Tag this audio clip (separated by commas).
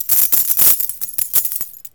home sounds, Coin (dropping)